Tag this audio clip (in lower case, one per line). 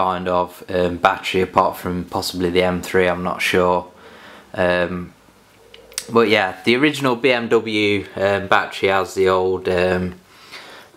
speech